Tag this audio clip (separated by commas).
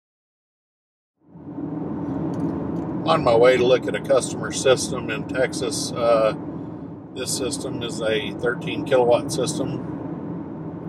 Speech